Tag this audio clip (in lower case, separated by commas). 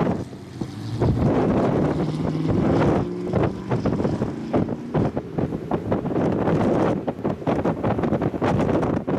wind, thunderstorm